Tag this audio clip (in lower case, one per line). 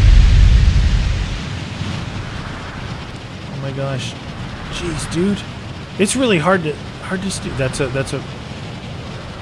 speech
outside, rural or natural